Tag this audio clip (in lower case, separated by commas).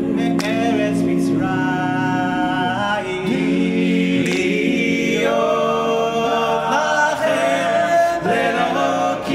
a capella, music, gospel music